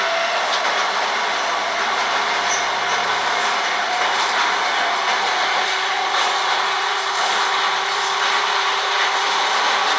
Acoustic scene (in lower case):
subway train